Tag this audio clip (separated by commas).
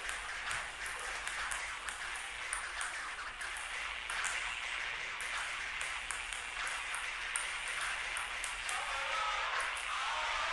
playing table tennis